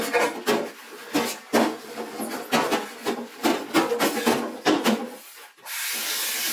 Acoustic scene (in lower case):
kitchen